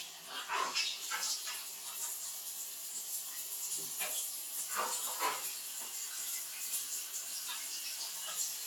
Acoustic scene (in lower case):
restroom